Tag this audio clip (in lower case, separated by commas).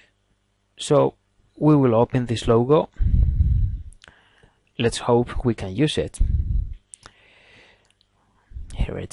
speech